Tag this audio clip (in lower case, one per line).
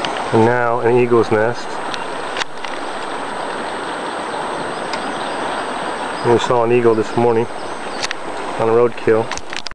speech
water vehicle
vehicle